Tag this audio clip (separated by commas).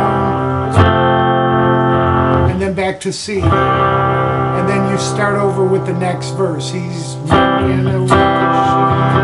Musical instrument, Reverberation, Plucked string instrument, Guitar